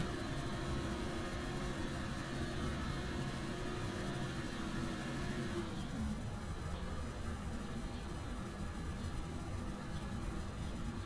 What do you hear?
large-sounding engine